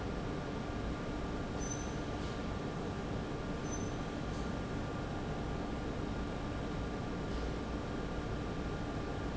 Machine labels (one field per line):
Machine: fan